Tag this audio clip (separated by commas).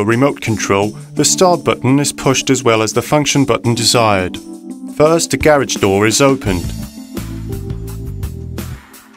Speech, Music